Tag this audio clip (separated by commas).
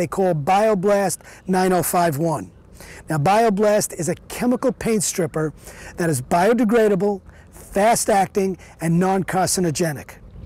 Speech